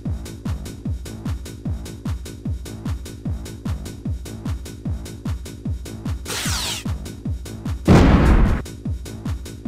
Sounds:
music

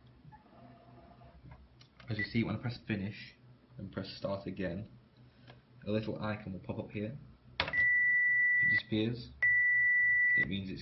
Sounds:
speech

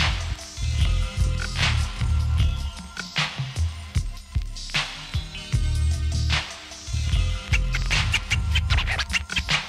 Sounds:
music

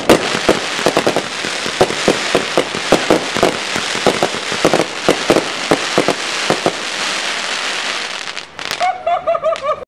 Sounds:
crackle

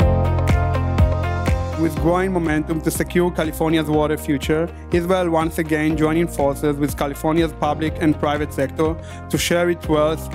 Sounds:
music
speech

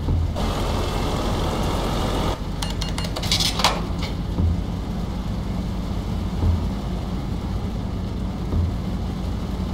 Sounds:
truck
vehicle

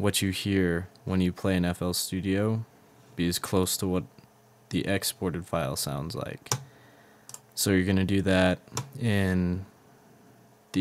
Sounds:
speech

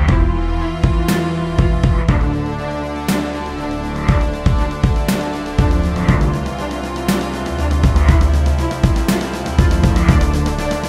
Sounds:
music
electronic music

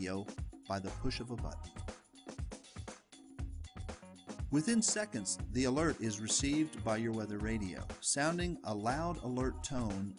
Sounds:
music
speech

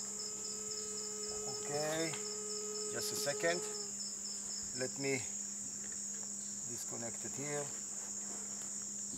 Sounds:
insect
cricket
fly
mosquito

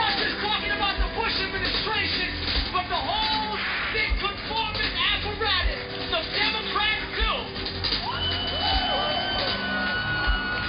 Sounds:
male speech
narration
music
speech

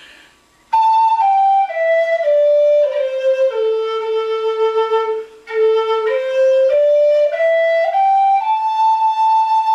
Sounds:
playing flute
musical instrument
flute
music
wind instrument

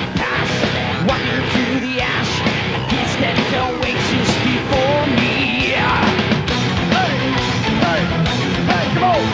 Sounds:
music

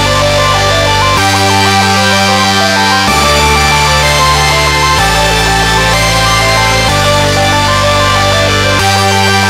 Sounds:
music

